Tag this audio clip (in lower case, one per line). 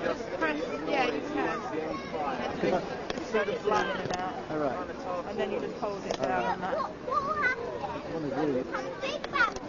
outside, urban or man-made
speech
chatter